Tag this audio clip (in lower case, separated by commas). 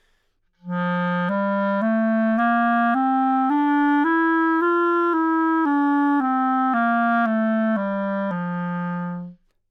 musical instrument, woodwind instrument, music